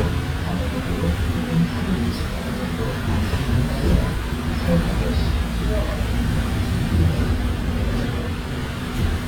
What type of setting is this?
bus